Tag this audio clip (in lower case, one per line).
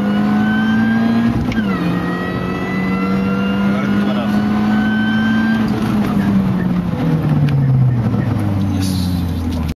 car
vehicle
revving
speech